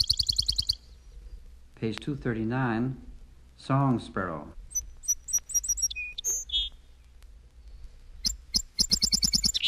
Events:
0.0s-9.6s: background noise
0.0s-9.6s: wind
3.5s-4.6s: man speaking
7.6s-7.7s: tick
8.8s-9.6s: tweet

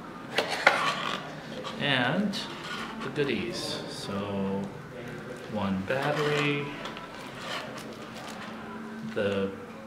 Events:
0.0s-9.8s: mechanisms
0.3s-0.4s: tick
0.4s-1.1s: surface contact
0.6s-0.7s: tick
1.6s-1.8s: tick
1.7s-2.4s: man speaking
2.5s-3.1s: surface contact
3.0s-4.7s: man speaking
4.5s-4.7s: tick
4.9s-6.7s: man speaking
5.0s-5.5s: generic impact sounds
6.0s-6.4s: surface contact
6.8s-7.0s: generic impact sounds
7.1s-7.6s: surface contact
7.7s-8.6s: crumpling
8.9s-9.2s: generic impact sounds
9.1s-9.5s: man speaking
9.2s-9.4s: tick
9.6s-9.8s: human voice

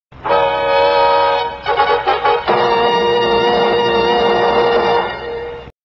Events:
0.1s-5.7s: television
0.3s-5.7s: music

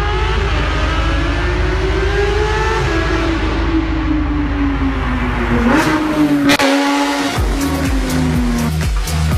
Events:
0.0s-3.4s: accelerating
0.0s-8.6s: race car
5.2s-6.6s: car passing by
5.5s-8.7s: accelerating
7.5s-9.3s: music

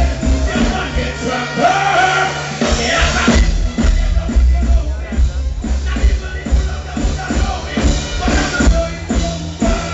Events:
0.0s-2.4s: choir
0.0s-9.9s: music
2.5s-3.5s: choir
3.8s-5.2s: choir
4.9s-5.6s: speech
5.8s-9.9s: choir

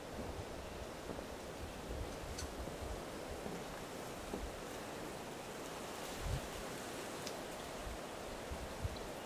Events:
0.0s-9.2s: water

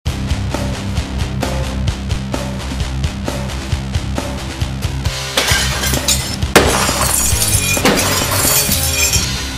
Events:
0.0s-9.5s: music
5.3s-5.5s: generic impact sounds
5.5s-6.3s: shatter
6.6s-6.8s: generic impact sounds
6.7s-9.3s: shatter
7.8s-8.0s: generic impact sounds

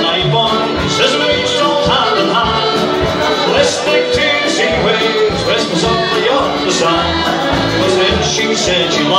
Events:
0.0s-9.1s: hubbub
0.0s-9.1s: music

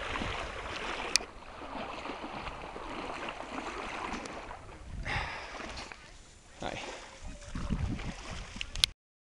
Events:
0.0s-8.9s: water
0.0s-9.2s: wind
0.1s-0.4s: wind noise (microphone)
1.1s-1.2s: tick
2.3s-2.5s: wind noise (microphone)
4.2s-4.3s: tick
4.7s-4.8s: speech
4.7s-5.4s: wind noise (microphone)
5.1s-5.5s: breathing
5.9s-6.4s: woman speaking
6.5s-6.8s: male speech
6.8s-7.0s: breathing
7.2s-8.3s: child speech
7.3s-8.9s: wind noise (microphone)
8.6s-8.9s: woman speaking
8.6s-8.6s: tick
8.8s-8.8s: tick

